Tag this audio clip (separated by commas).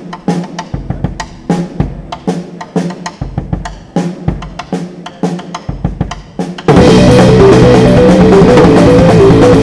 Cymbal, Drum, Bass drum, Wood block, Drum kit, Musical instrument, Music, Percussion